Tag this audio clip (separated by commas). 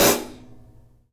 Cymbal, Musical instrument, Hi-hat, Music, Percussion